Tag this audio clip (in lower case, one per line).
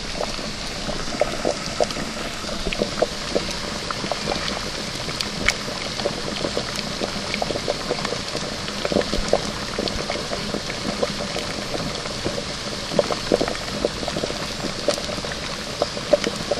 liquid
boiling